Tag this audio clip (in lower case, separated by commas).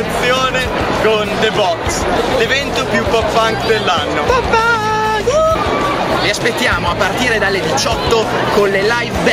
speech, music